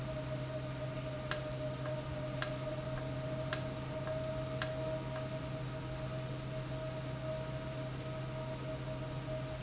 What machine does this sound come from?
valve